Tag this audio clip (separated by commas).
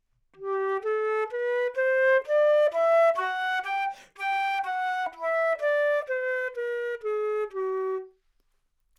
Musical instrument, Music, Wind instrument